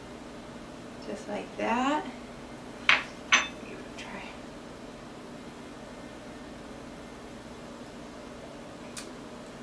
An adult female speaks and a dish clinks